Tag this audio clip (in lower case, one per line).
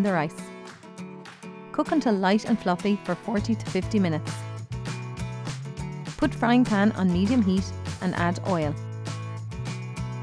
speech
music